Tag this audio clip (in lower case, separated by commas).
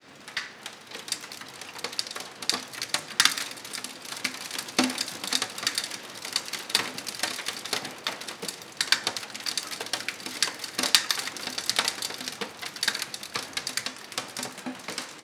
water, rain